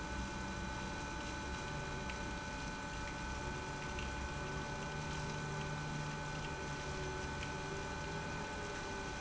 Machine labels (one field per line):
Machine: pump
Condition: abnormal